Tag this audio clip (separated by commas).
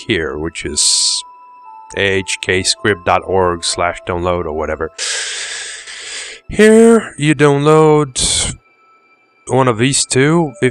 Speech, Music